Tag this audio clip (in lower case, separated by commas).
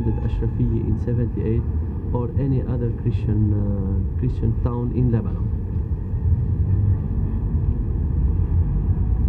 rumble, speech